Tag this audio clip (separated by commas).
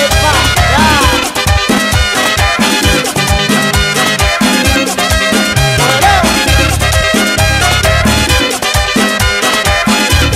Music